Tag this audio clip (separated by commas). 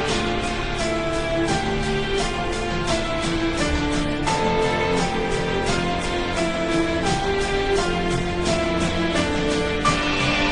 Soul music, Sad music, Music